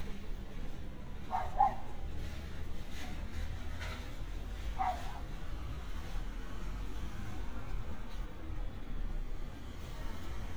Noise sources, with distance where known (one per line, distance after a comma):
medium-sounding engine, near
dog barking or whining, near